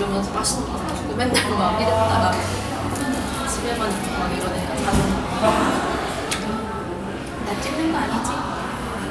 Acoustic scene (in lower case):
cafe